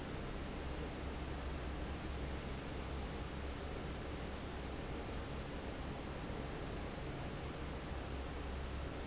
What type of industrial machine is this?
fan